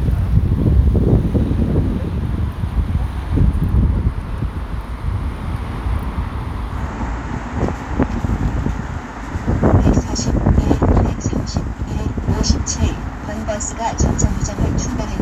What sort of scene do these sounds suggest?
street